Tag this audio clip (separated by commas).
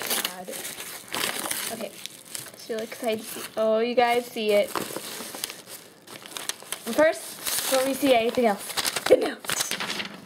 Speech, inside a small room